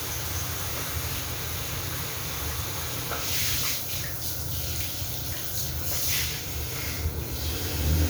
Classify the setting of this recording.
restroom